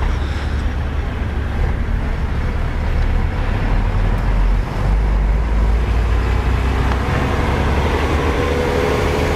There is a motorized vehicle driving approaching then driving past this location